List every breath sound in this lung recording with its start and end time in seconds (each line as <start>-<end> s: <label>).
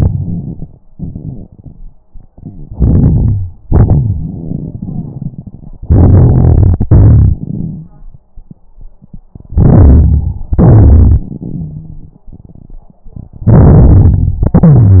0.00-0.79 s: inhalation
0.00-0.79 s: crackles
0.88-1.98 s: exhalation
0.88-1.98 s: crackles
2.31-3.56 s: inhalation
3.65-5.70 s: exhalation
3.65-5.70 s: crackles
5.86-6.87 s: inhalation
6.86-8.07 s: exhalation
6.86-8.07 s: crackles
9.54-10.45 s: inhalation
10.52-12.31 s: exhalation
10.52-12.31 s: crackles
13.44-14.43 s: inhalation
14.46-15.00 s: exhalation